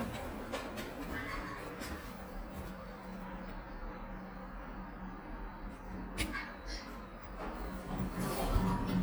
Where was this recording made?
in an elevator